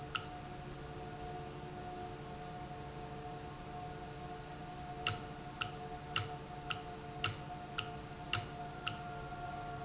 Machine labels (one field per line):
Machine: valve